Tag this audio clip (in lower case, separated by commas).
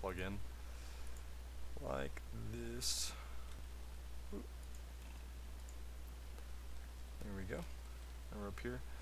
speech